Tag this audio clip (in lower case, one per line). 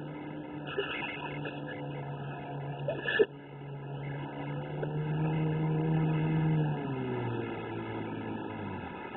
vehicle
speedboat